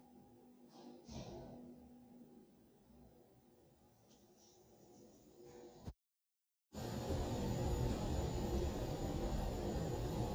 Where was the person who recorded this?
in an elevator